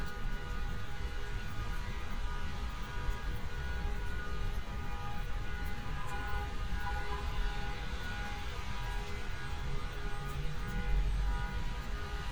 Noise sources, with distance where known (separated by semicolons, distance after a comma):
unidentified alert signal